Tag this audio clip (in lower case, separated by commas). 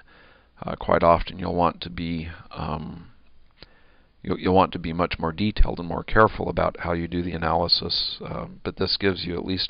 speech